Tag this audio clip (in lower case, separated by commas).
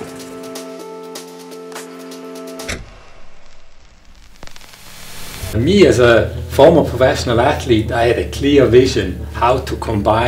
speech, inside a small room, music